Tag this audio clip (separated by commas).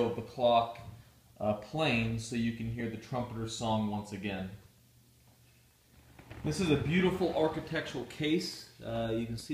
Speech